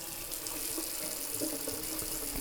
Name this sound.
water tap